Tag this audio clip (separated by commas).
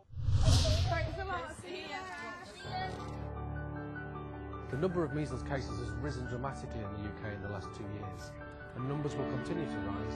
Music, Speech